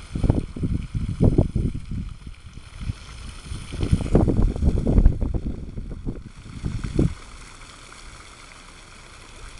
Wind blowing, water flows